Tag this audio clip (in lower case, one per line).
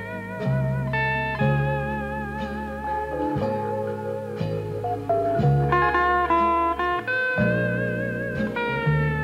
musical instrument
music
plucked string instrument